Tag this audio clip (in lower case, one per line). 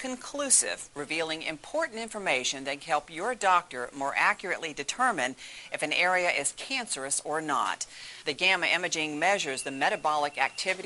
speech